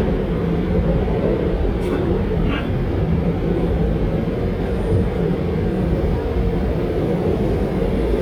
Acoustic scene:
subway train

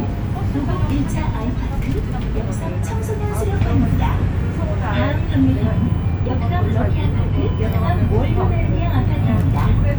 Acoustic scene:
bus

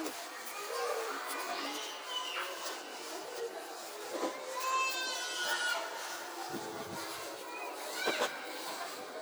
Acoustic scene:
residential area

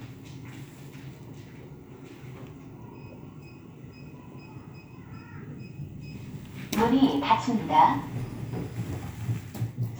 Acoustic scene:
elevator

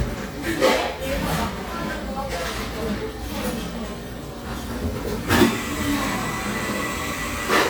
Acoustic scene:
cafe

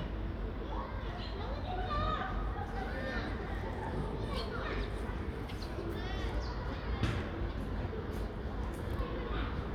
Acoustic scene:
residential area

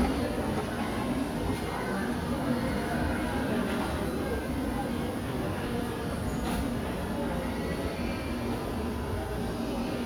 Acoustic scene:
cafe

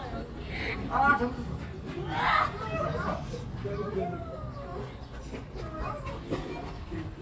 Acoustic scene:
park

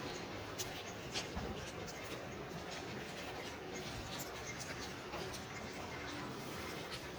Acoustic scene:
residential area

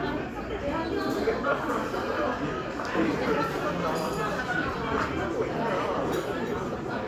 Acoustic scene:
crowded indoor space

